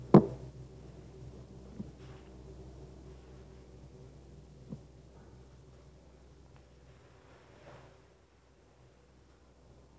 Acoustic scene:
elevator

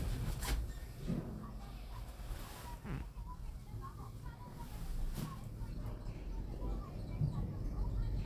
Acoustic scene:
elevator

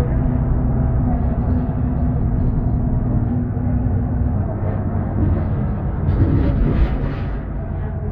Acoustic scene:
bus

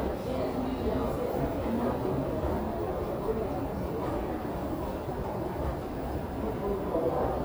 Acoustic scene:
subway station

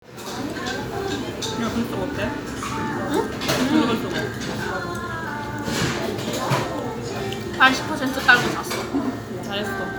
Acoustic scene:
restaurant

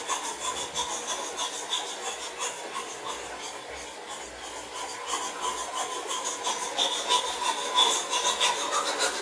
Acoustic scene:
restroom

